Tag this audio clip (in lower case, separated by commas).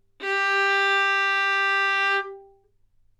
bowed string instrument, music, musical instrument